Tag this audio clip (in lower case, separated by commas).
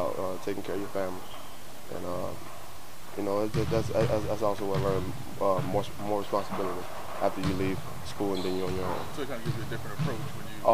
speech, basketball bounce